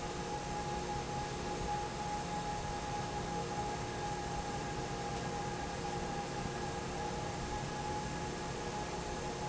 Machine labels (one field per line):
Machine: fan